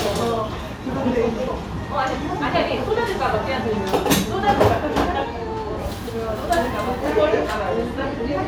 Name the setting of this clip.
cafe